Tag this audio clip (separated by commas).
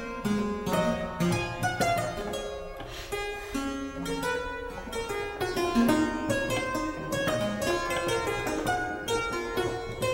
playing harpsichord